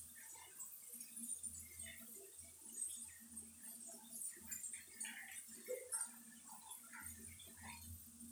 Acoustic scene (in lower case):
restroom